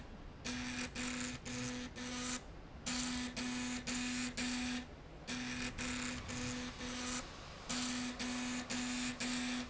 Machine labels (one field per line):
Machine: slide rail